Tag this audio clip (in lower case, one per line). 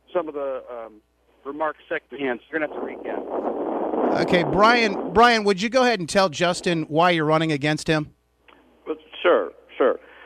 speech